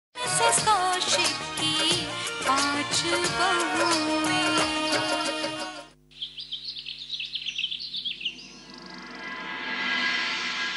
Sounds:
Music

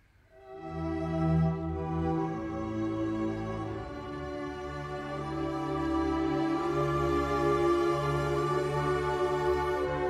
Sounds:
Violin, Bowed string instrument

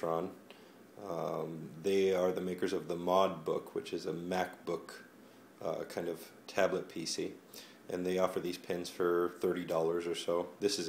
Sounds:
Speech

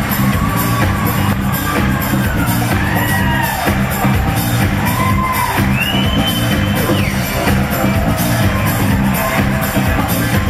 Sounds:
Music

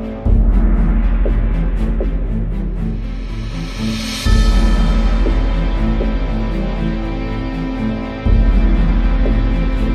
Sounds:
Music

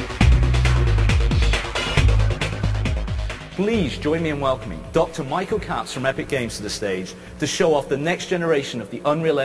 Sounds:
Speech, Music

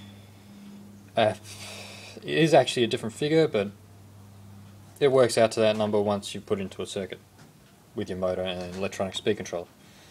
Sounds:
Speech

